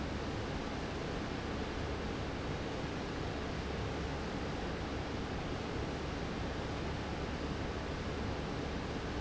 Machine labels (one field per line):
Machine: fan